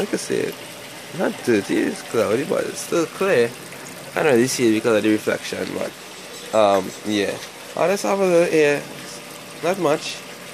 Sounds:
speech

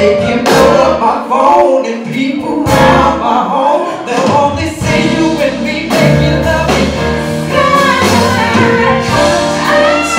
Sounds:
music
singing

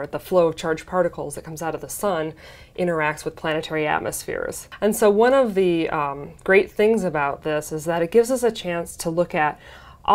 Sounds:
speech

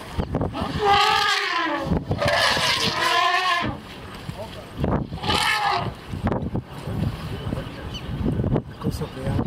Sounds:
elephant trumpeting

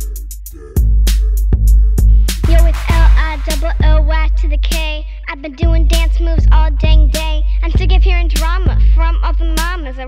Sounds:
rapping

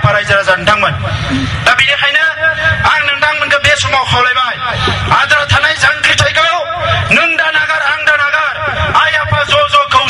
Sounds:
man speaking
speech

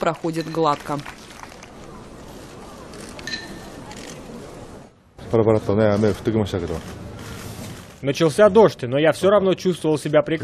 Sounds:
people battle cry

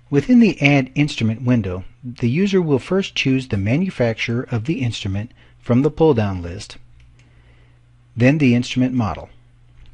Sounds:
speech

